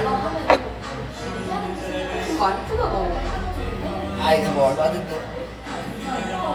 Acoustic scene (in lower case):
cafe